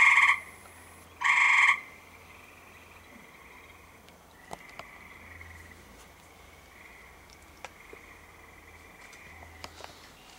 Two high pitched chirps of a small frog